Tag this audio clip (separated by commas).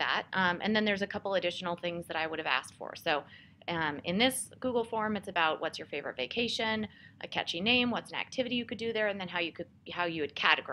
Speech